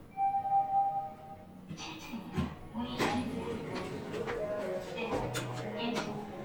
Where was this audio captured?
in an elevator